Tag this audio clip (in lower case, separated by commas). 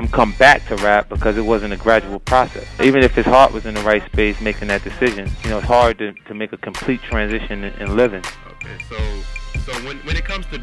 exciting music, speech, music